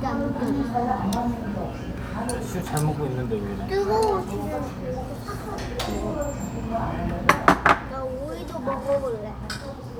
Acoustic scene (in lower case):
restaurant